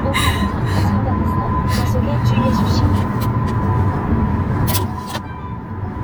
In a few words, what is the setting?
car